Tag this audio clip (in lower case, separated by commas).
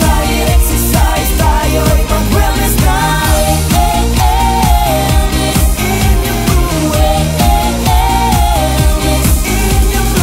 music, pop music